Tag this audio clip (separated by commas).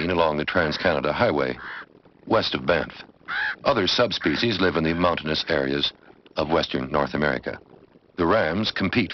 Speech